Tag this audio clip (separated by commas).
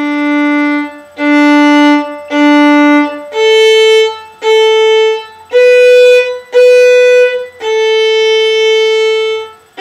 Music, Violin, playing violin, Musical instrument